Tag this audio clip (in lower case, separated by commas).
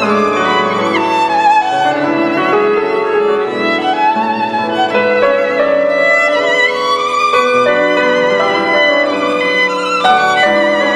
musical instrument, violin, music